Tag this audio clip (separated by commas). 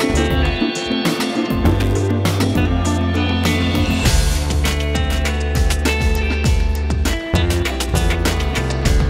Music